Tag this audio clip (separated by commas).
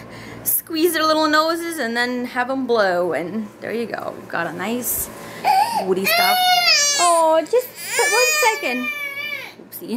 Speech, Babbling